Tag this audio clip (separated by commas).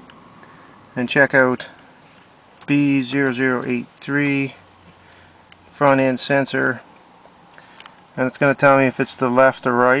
Speech